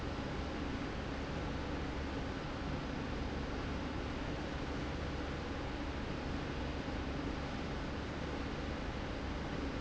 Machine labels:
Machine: slide rail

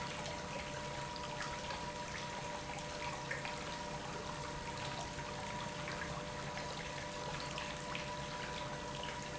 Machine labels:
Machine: pump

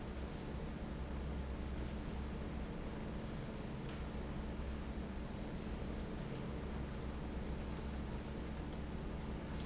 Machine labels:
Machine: fan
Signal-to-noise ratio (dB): 0 dB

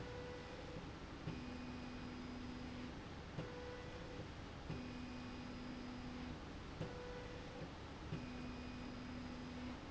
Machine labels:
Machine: slide rail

